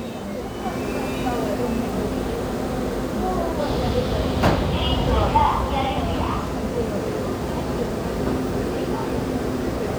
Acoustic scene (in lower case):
subway station